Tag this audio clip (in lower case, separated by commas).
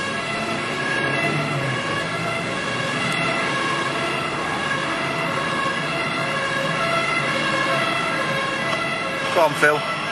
speech